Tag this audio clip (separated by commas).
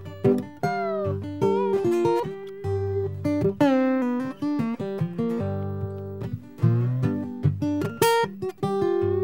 slide guitar